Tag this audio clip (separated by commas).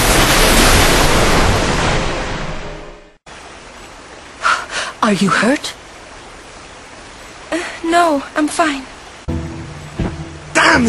Pink noise